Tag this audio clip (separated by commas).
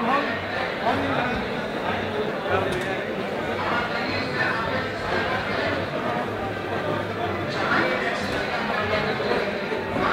Speech